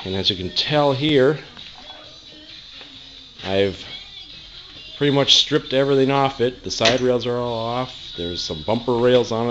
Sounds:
Music, Speech

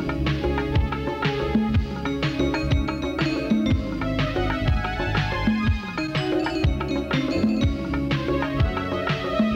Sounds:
Music

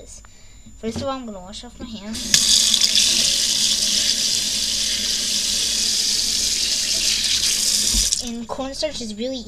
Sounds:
Speech

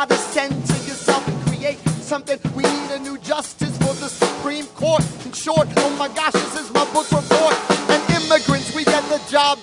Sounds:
rapping

